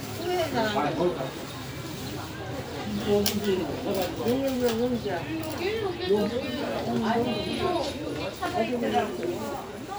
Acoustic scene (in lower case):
park